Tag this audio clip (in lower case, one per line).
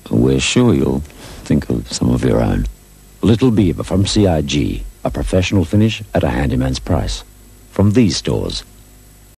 speech